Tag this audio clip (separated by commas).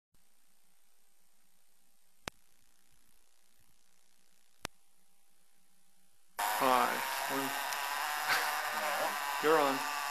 Speech, electric razor